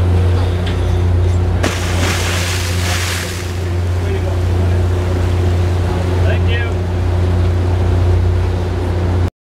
Large mechanical humming followed by a loud splash and people speaking